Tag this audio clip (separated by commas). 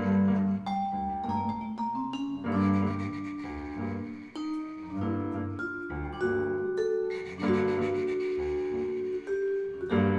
Vibraphone, Double bass, Musical instrument, fiddle, Piano, Bowed string instrument, Music